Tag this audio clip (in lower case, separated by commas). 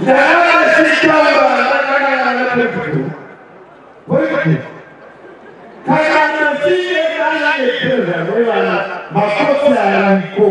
speech, monologue, male speech